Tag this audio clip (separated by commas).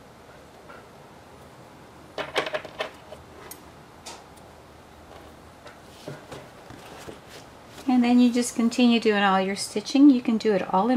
using sewing machines